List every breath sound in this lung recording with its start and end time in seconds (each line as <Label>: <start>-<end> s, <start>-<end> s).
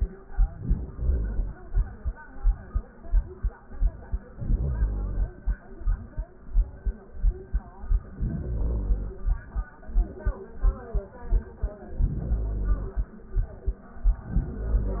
Inhalation: 0.30-1.67 s, 4.32-5.68 s, 8.09-9.45 s, 11.88-13.14 s, 13.97-15.00 s